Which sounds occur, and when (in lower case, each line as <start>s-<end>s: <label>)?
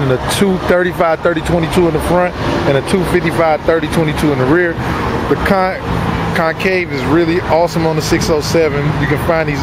0.0s-2.3s: man speaking
0.0s-9.6s: mechanisms
0.0s-9.6s: wind
2.6s-4.7s: man speaking
5.2s-5.8s: man speaking
6.3s-9.6s: man speaking